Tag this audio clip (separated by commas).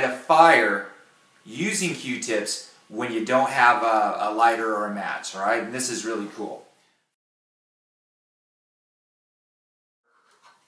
Speech, inside a small room